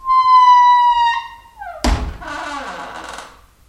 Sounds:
Squeak

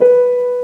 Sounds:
Musical instrument, Music, Keyboard (musical), Piano

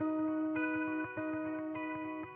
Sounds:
Plucked string instrument, Music, Musical instrument, Guitar, Electric guitar

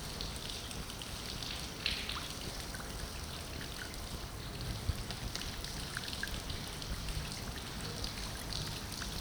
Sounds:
Bird, Wild animals, Animal

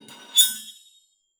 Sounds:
Domestic sounds, silverware

